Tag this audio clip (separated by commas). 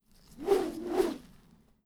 swoosh